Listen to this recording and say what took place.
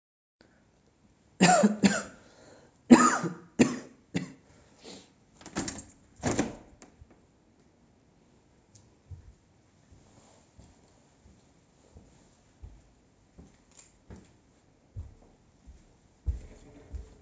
I coughed, opened the window, and walked away from it.